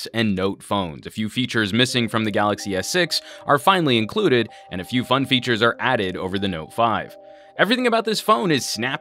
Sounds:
Music, Speech

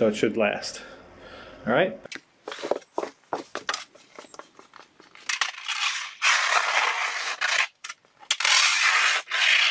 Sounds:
Speech

